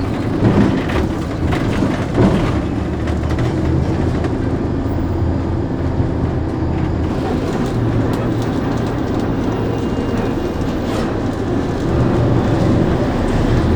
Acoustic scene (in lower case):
bus